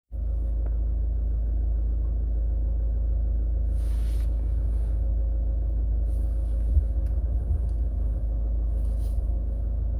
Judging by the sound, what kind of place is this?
car